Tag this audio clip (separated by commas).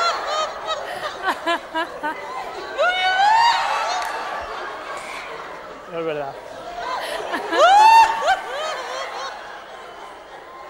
people sniggering